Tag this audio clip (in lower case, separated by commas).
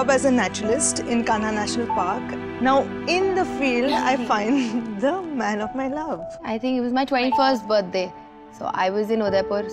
music, speech